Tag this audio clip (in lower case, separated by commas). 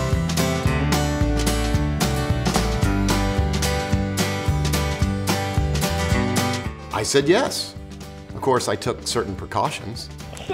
music, speech